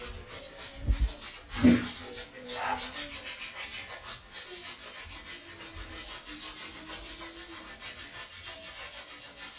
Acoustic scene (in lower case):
restroom